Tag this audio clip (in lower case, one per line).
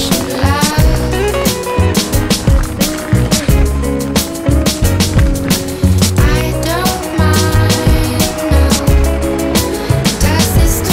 music